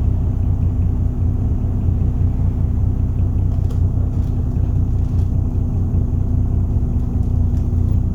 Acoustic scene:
bus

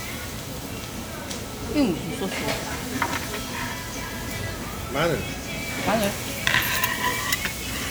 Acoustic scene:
restaurant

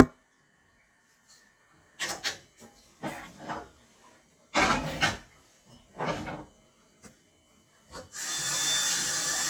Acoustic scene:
kitchen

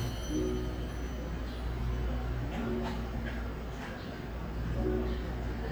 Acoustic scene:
cafe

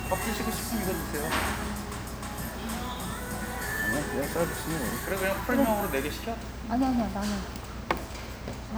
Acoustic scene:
restaurant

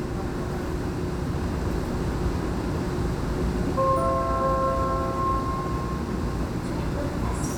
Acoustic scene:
subway train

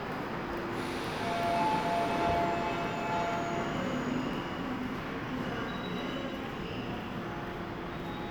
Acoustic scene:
subway station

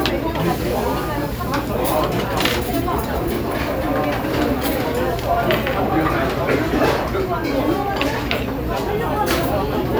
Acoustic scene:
restaurant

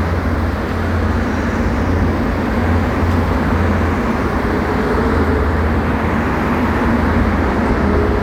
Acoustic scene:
street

